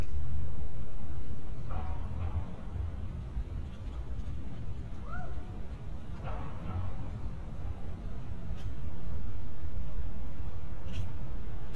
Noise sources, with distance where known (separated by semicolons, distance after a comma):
person or small group shouting, far